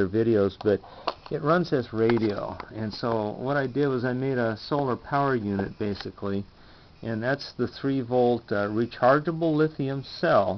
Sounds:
speech

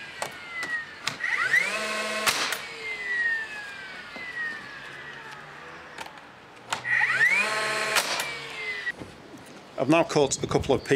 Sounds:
tools, wood, power tool

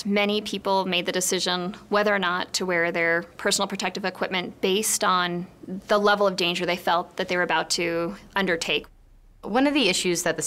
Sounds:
speech

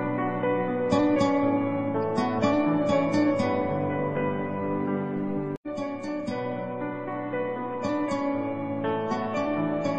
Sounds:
music

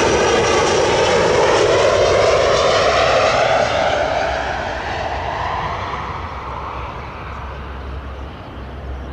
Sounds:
airplane flyby

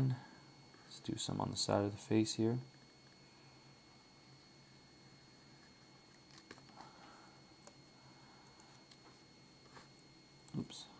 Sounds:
speech, inside a small room

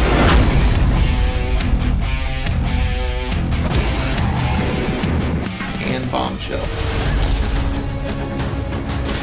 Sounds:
speech, funk, music

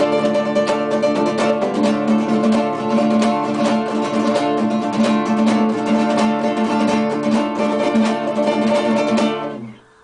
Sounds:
guitar, music, plucked string instrument, musical instrument

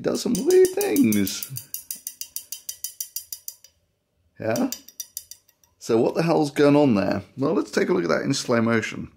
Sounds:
speech

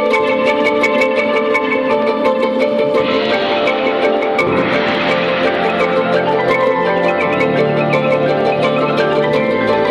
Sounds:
percussion

